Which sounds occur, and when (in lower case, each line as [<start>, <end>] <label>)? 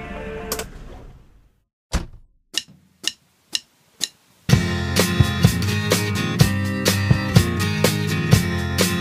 [0.00, 0.62] music
[0.00, 1.69] background noise
[0.48, 0.62] generic impact sounds
[1.88, 2.19] generic impact sounds
[2.50, 2.68] generic impact sounds
[2.50, 4.45] background noise
[3.02, 3.15] generic impact sounds
[3.52, 3.61] generic impact sounds
[3.98, 4.07] generic impact sounds
[4.48, 9.00] music